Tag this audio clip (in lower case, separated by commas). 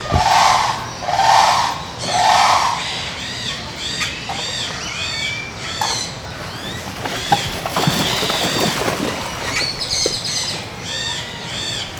animal, wild animals, bird